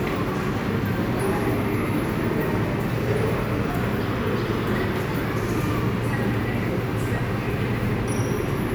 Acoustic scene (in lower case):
subway station